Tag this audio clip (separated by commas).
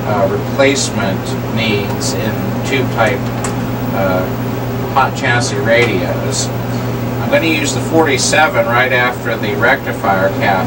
Speech